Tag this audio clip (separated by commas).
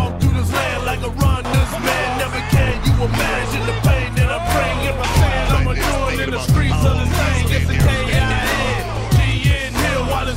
Speech, Music